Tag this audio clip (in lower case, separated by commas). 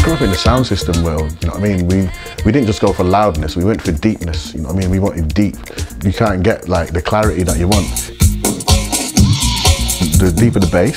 music, techno, trance music, electronic music, house music, electronica, speech, electronic dance music